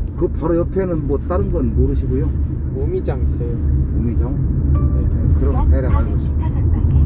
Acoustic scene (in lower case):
car